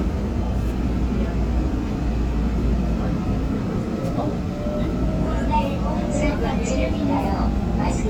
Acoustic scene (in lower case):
subway train